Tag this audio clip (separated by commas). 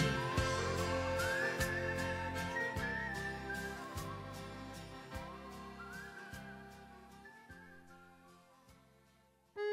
Music, woodwind instrument